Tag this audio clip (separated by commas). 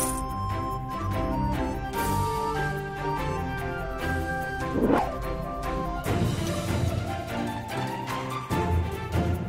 Music